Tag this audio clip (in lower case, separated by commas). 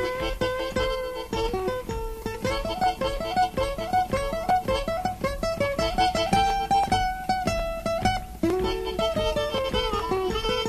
ukulele, blues, music